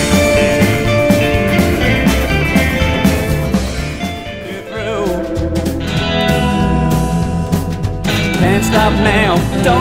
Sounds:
music

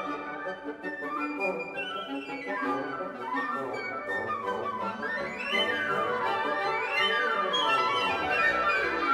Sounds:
music

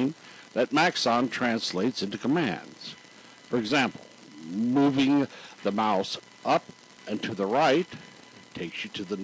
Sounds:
speech

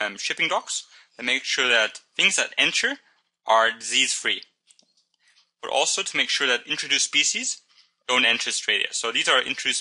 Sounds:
speech

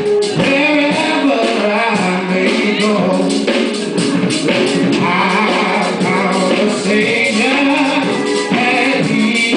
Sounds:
male singing, music

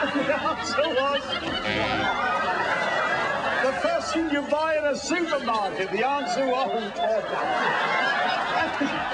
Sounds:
speech

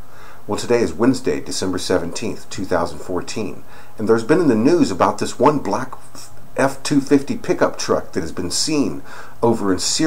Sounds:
speech

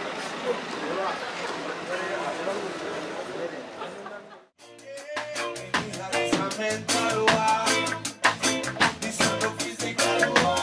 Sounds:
speech, music

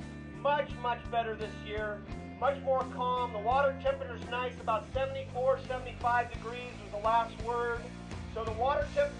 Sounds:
speech, gurgling, music

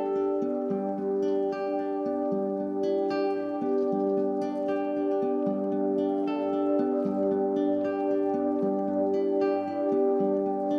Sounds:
music

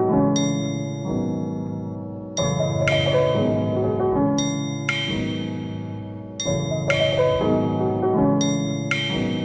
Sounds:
music, glockenspiel

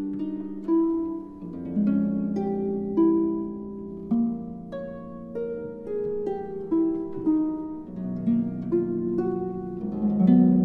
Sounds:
pizzicato, harp

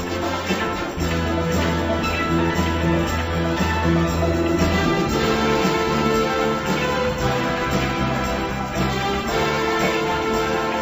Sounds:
music

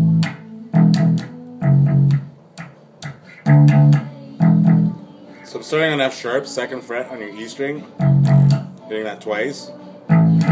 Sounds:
plucked string instrument, music, musical instrument, speech, electric guitar

